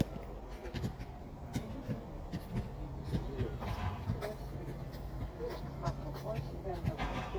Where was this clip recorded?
in a park